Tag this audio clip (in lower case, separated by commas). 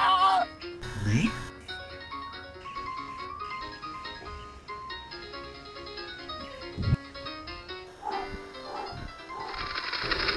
outside, rural or natural, music, speech